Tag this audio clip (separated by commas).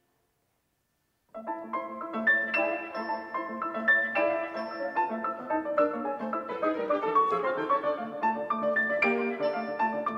Musical instrument, Music, Piano